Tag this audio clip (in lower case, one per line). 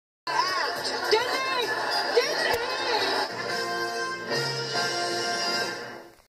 music
speech
television